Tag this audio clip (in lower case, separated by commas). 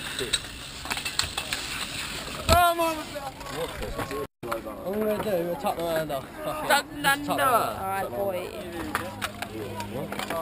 speech